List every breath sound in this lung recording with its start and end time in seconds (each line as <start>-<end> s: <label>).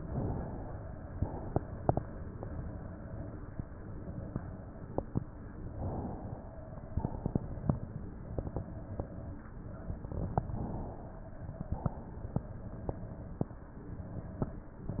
0.00-1.20 s: inhalation
1.20-2.38 s: exhalation
5.62-6.79 s: inhalation
6.79-8.58 s: exhalation
10.40-11.77 s: inhalation
11.77-13.42 s: exhalation
14.81-15.00 s: exhalation